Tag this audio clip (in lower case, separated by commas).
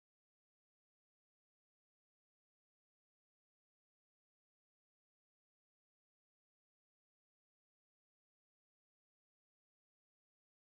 silence